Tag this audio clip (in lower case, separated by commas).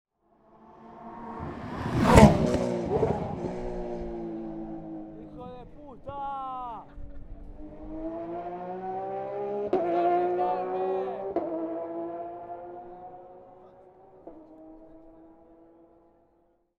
engine, revving, vehicle, race car, motor vehicle (road), car